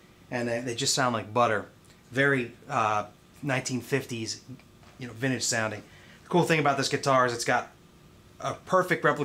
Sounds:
Speech

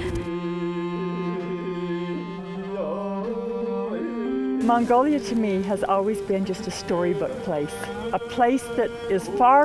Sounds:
Sitar

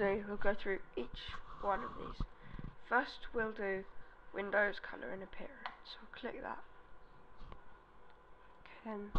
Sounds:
Speech

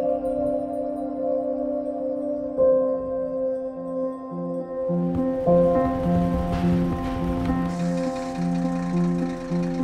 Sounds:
Vehicle, Music

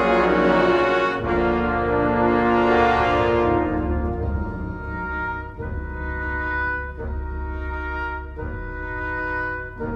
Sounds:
Music, Exciting music

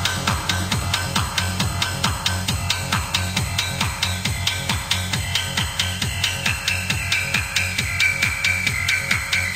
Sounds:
Electronic music, Music, Techno

